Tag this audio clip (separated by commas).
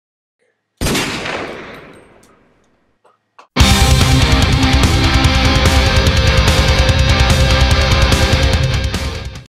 gunfire, Music